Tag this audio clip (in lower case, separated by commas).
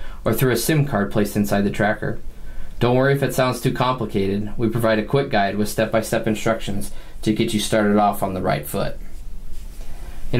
speech